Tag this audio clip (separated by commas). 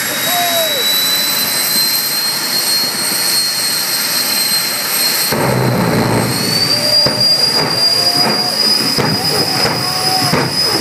Car, Vehicle, Speech, Motor vehicle (road)